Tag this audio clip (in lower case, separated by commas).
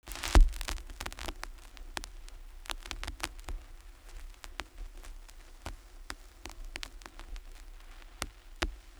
crackle